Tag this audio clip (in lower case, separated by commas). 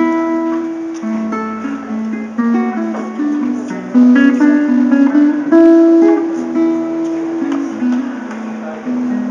music, ukulele